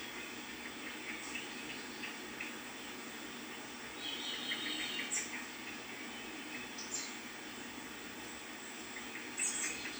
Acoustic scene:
park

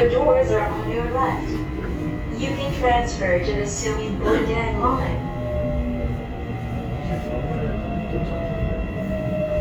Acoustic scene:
subway train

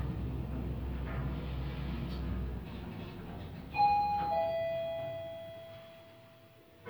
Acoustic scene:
elevator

